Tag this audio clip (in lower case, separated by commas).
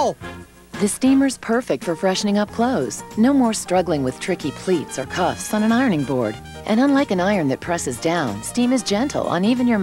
music, speech